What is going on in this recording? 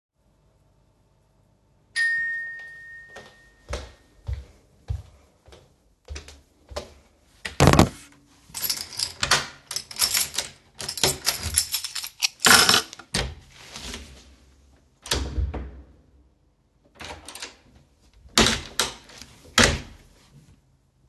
The bell rung, I went to the door, I used the key to unlock the door, I opened the door and closed it again.